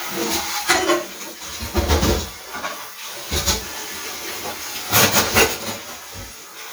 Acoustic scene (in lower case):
kitchen